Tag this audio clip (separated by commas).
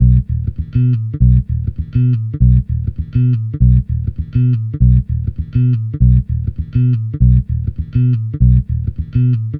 Guitar, Plucked string instrument, Musical instrument, Bass guitar, Music